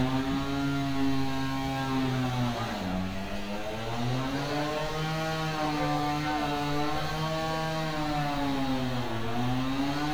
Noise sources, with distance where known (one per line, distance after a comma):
chainsaw